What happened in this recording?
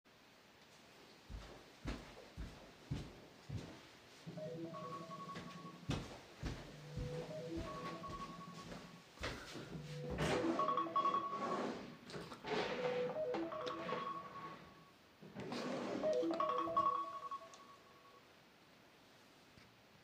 A phone rings while a person is walking around trying to find it. He opens a drawer to then find it in there.